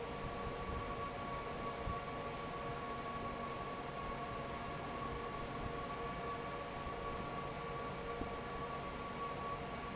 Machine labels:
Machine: fan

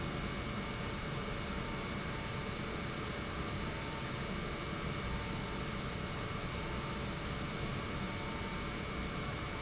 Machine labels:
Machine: pump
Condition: normal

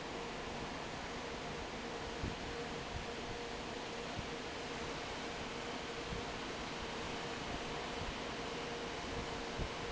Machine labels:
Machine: fan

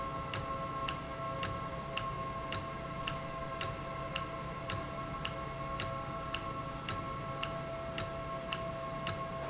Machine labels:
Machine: valve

